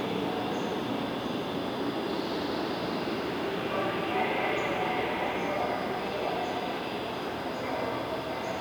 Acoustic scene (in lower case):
subway station